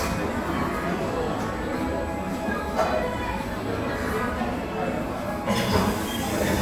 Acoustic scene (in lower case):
cafe